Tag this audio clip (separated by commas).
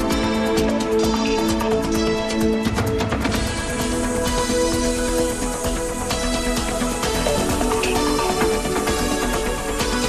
Music